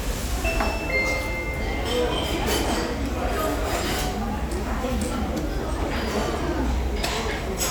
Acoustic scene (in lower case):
restaurant